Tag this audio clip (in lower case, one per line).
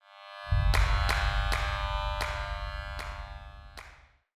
clapping
hands